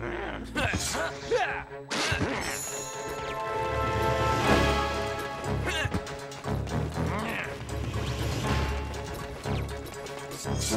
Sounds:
Run, Music

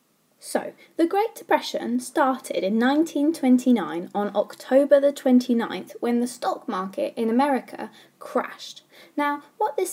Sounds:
Speech

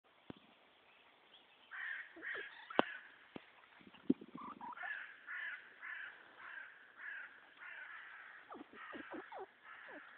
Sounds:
Animal

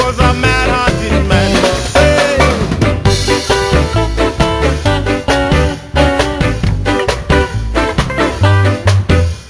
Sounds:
Ska, Music

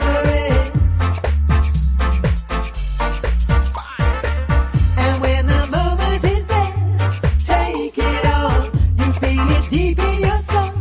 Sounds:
Music

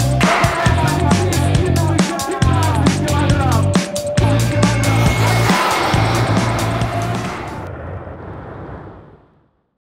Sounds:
Music

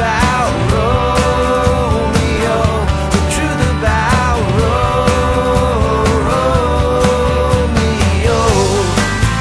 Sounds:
Music

